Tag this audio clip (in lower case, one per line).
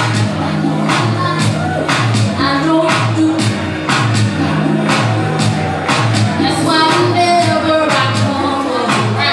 music